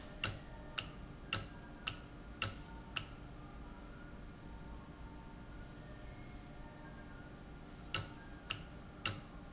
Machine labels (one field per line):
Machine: valve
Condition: normal